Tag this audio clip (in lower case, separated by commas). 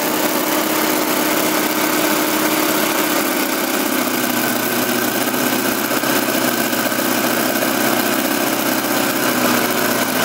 engine, idling